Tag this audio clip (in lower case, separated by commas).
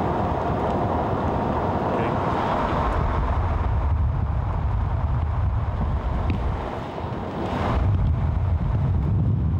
speech